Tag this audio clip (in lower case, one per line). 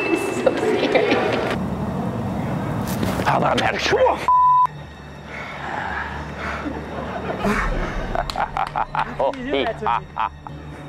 speech